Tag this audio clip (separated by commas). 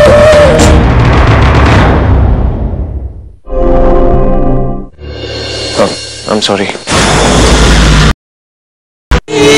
Speech, Music